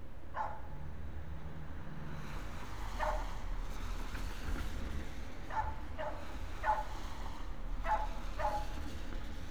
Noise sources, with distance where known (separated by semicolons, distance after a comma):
dog barking or whining, near